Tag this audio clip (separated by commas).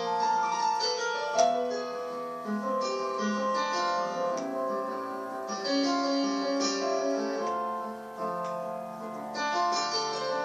Music, inside a small room, Keyboard (musical), Piano, Musical instrument